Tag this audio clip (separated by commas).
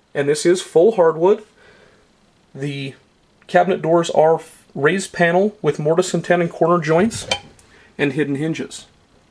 Speech